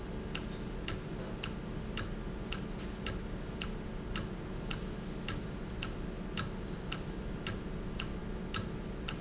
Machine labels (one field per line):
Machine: valve